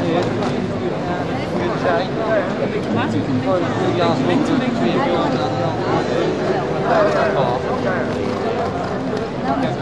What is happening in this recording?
People are speaking and a horse is trotting